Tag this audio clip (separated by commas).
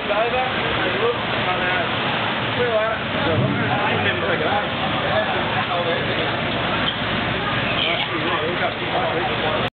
Speech